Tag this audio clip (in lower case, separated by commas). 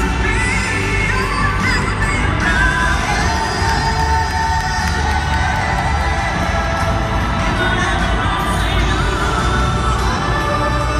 exciting music, bluegrass, music, country